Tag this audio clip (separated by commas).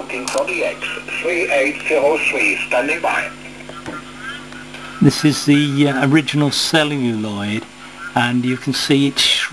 Radio, Speech